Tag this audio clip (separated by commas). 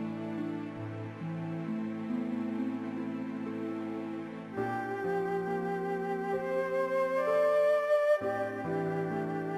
Tender music, Music